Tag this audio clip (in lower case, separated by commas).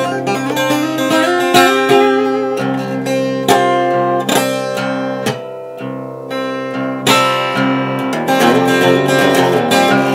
plucked string instrument, musical instrument, music, strum, acoustic guitar, guitar